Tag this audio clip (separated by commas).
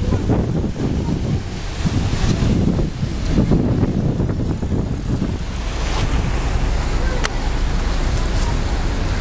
Vehicle, Speech, Ship